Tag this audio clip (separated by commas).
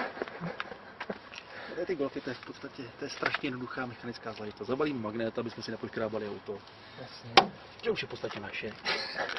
Speech